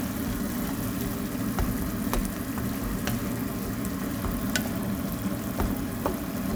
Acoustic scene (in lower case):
kitchen